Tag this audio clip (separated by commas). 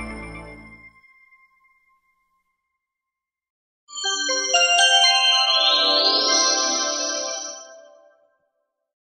Ding-dong